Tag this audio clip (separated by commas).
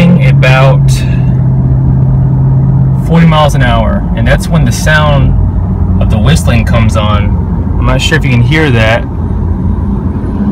Speech